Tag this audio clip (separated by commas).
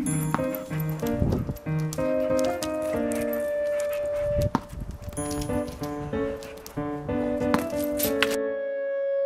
Animal, Music, canids, pets, outside, urban or man-made